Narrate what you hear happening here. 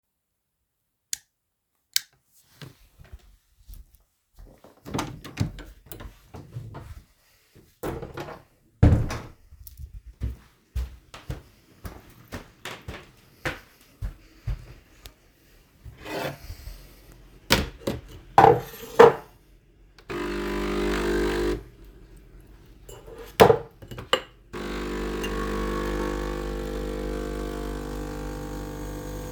I turned on the light, opened the door, and closed it behind me. Then I went to the kitchen and made a coffee.